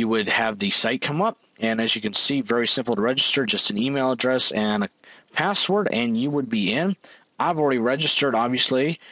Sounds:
speech

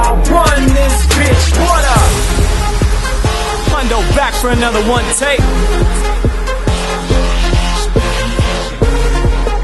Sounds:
music, speech

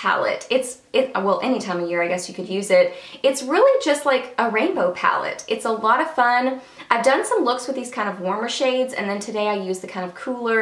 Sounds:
speech

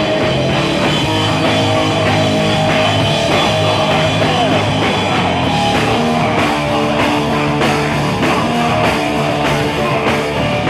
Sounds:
blues, music

